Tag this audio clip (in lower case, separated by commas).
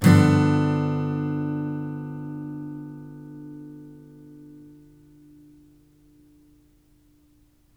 musical instrument, guitar, acoustic guitar, music, strum, plucked string instrument